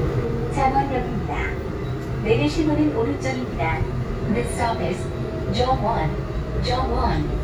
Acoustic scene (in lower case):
subway train